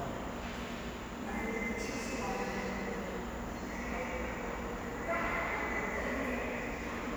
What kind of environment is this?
subway station